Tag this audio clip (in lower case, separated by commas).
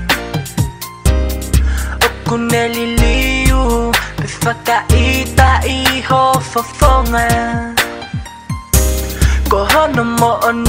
rhythm and blues, music